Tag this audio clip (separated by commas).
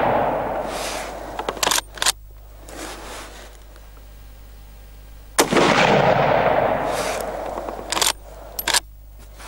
outside, rural or natural